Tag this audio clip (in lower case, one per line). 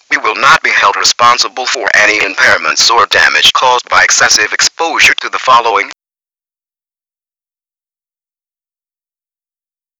human voice
speech
man speaking